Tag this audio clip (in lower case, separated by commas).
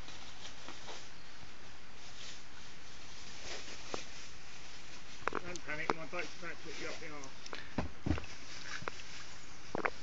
canoe, speech, vehicle, water vehicle